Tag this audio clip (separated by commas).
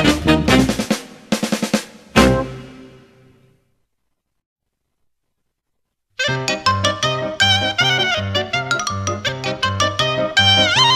Music